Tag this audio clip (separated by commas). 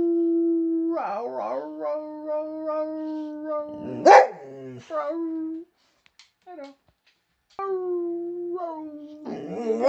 dog howling